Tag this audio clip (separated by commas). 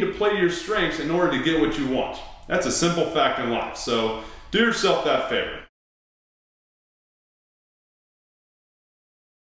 Speech